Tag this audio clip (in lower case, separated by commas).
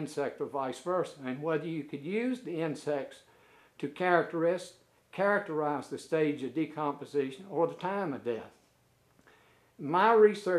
speech